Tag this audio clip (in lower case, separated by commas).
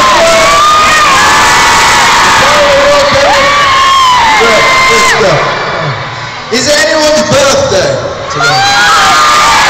speech